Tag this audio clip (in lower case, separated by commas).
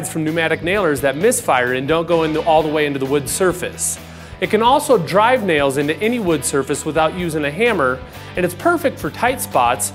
music, speech